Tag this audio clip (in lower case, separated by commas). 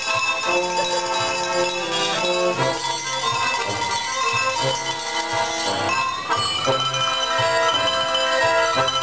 soundtrack music, music, theme music, bell, independent music